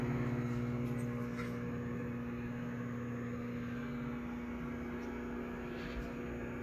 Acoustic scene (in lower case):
kitchen